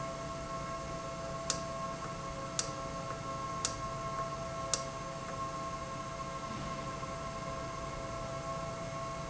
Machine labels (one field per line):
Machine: valve